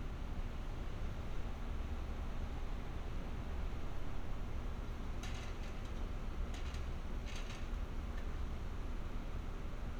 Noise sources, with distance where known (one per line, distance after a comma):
background noise